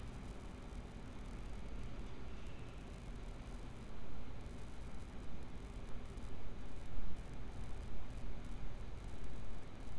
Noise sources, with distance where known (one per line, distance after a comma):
background noise